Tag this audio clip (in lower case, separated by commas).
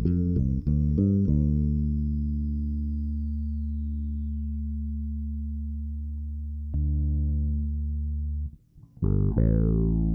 guitar, music, musical instrument, bass guitar, plucked string instrument